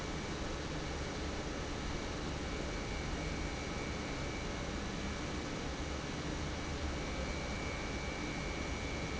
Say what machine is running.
pump